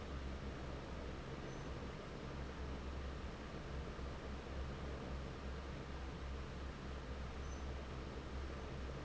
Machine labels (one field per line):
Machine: fan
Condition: normal